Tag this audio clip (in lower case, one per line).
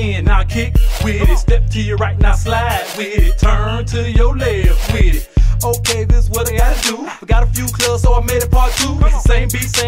music